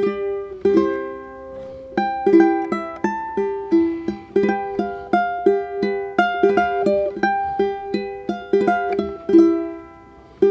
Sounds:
ukulele, music

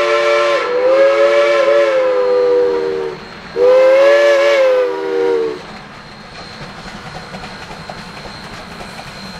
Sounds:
train whistling

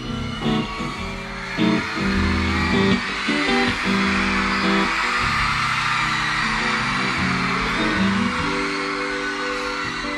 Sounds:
music

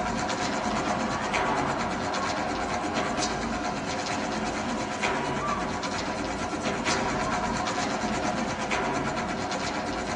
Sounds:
inside a large room or hall, music

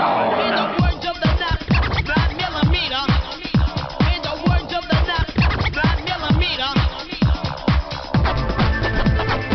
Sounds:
music

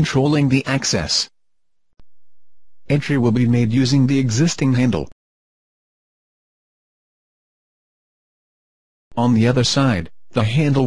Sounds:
speech

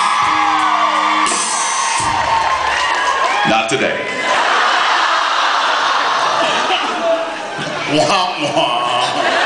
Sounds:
music, speech

